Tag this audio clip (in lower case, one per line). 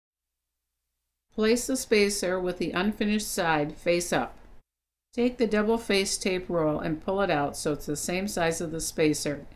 speech